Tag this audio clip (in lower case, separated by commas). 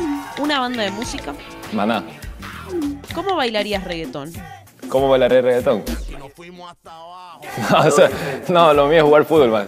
music, speech